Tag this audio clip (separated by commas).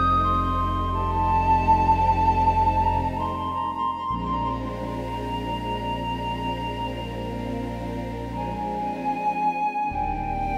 New-age music